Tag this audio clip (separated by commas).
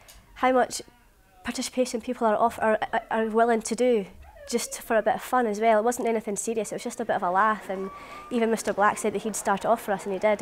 Speech